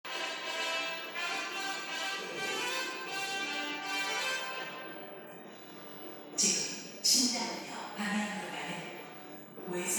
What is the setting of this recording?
subway station